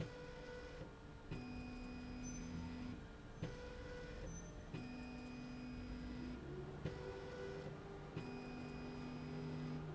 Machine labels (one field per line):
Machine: slide rail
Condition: normal